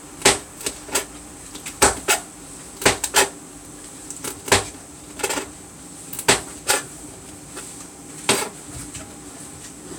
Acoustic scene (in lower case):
kitchen